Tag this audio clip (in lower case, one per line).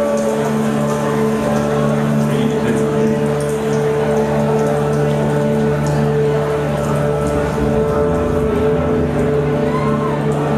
music